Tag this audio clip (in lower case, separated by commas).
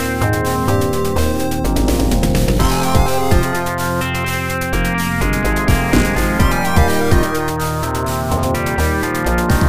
music